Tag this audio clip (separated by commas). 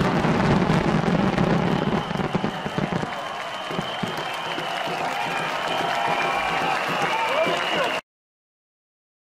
lighting firecrackers